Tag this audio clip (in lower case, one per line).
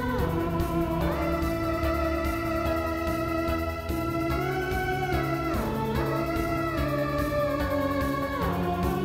playing theremin